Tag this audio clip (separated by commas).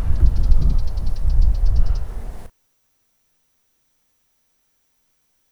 Bird, Wild animals, Animal